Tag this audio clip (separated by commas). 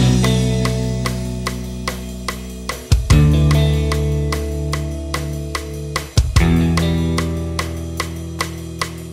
Music